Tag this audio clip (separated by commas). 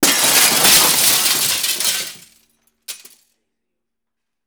Glass, Shatter